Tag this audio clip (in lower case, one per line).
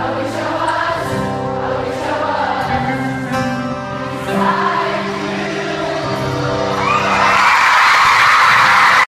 choir
music